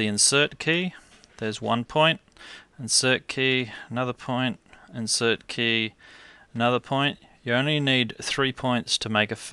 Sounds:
speech

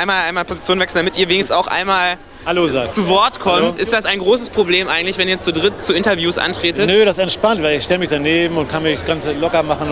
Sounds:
speech

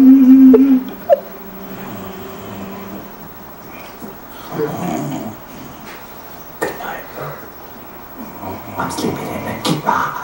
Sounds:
speech

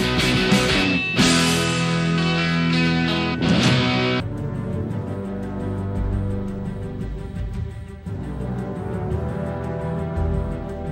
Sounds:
grunge
music

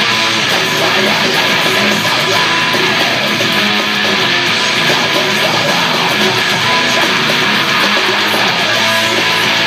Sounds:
guitar
electric guitar
musical instrument
music

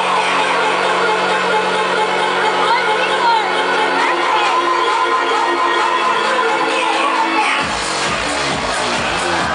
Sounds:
music
crowd
speech

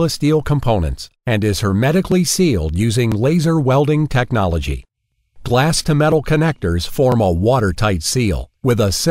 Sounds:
speech

